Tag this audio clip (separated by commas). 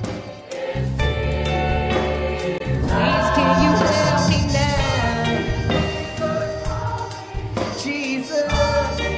Choir, Christian music, Singing, Gospel music, Music, Percussion